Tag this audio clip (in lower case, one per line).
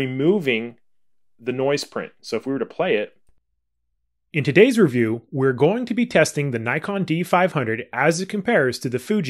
speech